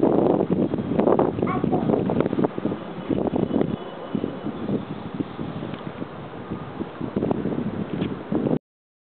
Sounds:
wind noise (microphone)
wind noise

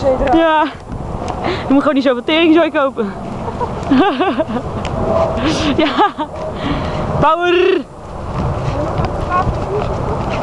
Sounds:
speech

